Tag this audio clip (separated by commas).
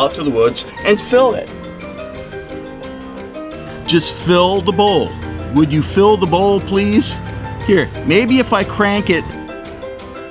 Music, Speech